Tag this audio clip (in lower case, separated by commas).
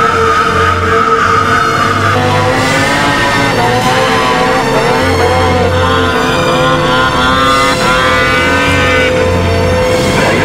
driving snowmobile